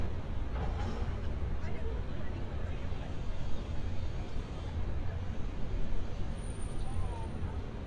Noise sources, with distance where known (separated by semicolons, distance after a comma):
person or small group talking